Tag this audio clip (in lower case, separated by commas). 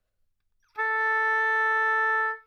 musical instrument, music, woodwind instrument